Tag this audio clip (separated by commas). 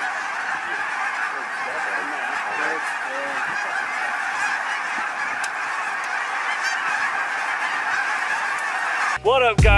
goose honking